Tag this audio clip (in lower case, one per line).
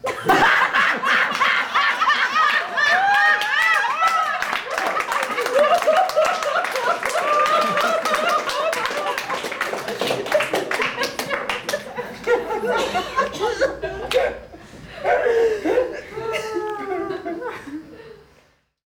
laughter
human voice
human group actions
applause